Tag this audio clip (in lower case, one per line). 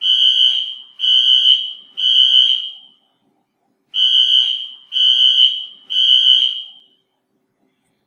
alarm